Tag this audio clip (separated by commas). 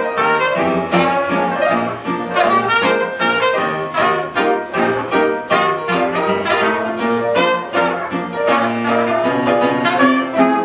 Blues, Music